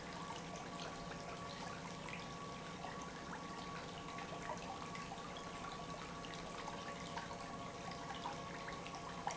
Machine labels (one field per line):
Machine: pump